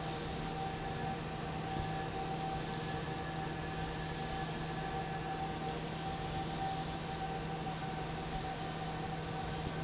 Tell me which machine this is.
fan